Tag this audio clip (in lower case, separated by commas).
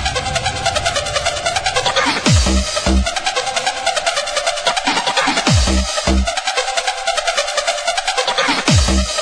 music